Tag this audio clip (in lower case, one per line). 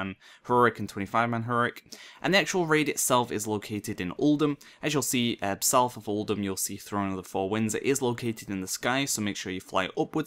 speech